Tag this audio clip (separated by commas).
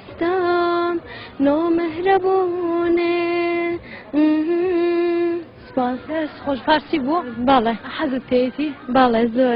Female singing, Speech